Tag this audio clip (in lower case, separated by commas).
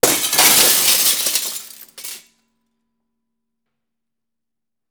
glass, shatter